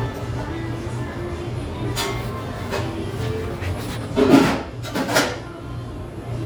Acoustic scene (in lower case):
restaurant